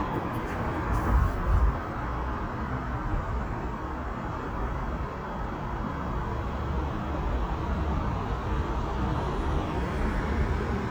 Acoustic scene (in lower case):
street